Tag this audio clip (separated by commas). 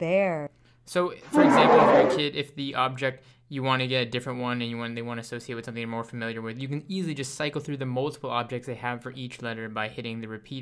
Speech